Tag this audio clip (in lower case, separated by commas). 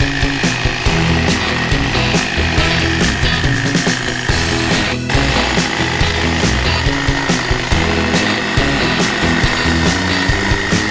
hedge trimmer running